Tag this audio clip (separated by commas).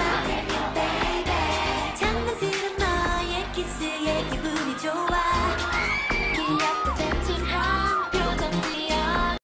Music